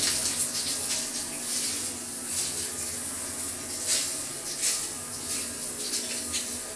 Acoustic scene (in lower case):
restroom